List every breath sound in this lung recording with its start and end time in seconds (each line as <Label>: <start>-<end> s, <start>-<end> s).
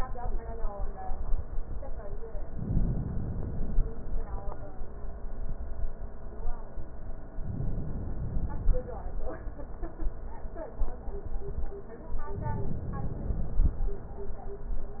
Inhalation: 2.44-3.94 s, 7.33-8.81 s, 12.37-13.64 s
Exhalation: 3.94-4.63 s, 8.81-9.39 s